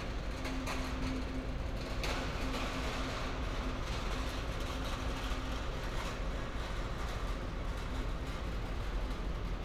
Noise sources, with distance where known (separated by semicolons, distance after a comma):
engine of unclear size